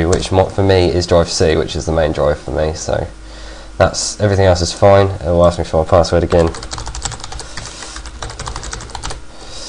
A man is talking while typing on a keyboard